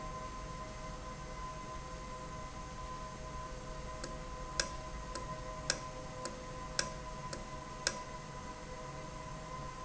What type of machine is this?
valve